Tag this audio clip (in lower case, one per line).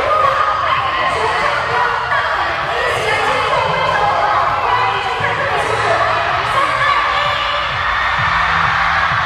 speech
music